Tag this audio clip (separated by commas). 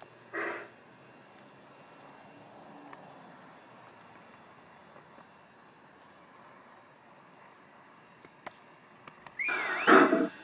Train, Rail transport, train wagon